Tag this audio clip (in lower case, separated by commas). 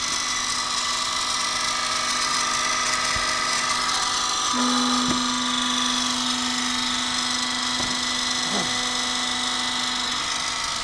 wood